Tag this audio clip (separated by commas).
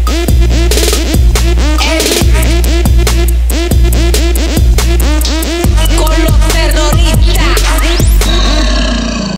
Disco, Music